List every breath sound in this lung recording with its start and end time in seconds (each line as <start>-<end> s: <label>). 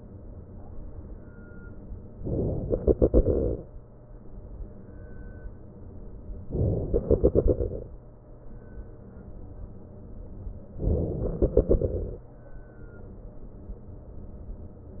2.16-2.71 s: inhalation
2.71-4.45 s: exhalation
6.54-6.93 s: inhalation
6.93-9.16 s: exhalation
10.85-11.36 s: inhalation
11.36-12.71 s: exhalation